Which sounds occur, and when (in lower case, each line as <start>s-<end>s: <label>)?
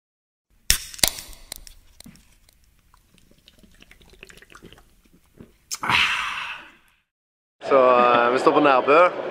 0.5s-7.1s: environmental noise
0.7s-0.8s: generic impact sounds
0.8s-1.0s: tick
1.0s-1.2s: generic impact sounds
1.1s-1.3s: tick
1.5s-1.7s: tick
1.9s-2.1s: generic impact sounds
1.9s-2.1s: tick
2.4s-2.6s: tick
2.7s-2.8s: tick
2.9s-4.9s: drinking straw
5.0s-5.5s: human voice
5.7s-7.1s: human voice
7.6s-9.1s: man speaking
7.6s-9.3s: hubbub
7.9s-8.2s: giggle